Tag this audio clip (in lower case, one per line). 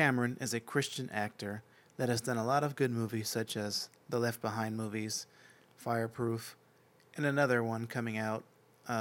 speech
monologue
man speaking